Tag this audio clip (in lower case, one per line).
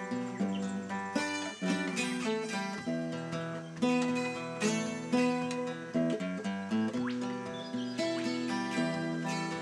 music